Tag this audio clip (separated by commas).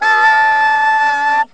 Wind instrument, Musical instrument, Music